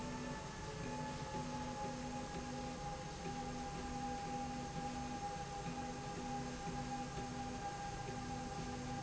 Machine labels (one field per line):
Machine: slide rail